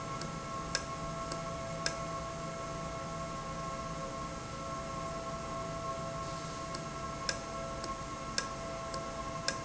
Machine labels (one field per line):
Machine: valve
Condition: normal